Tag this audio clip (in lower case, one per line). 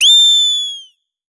animal